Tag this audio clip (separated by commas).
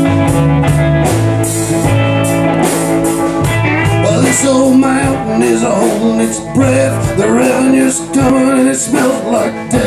Music